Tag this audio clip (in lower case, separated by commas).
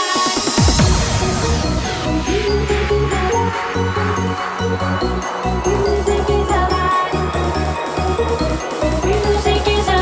trance music, music